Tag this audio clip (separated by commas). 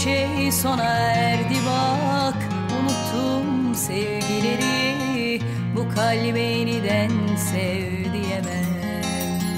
Music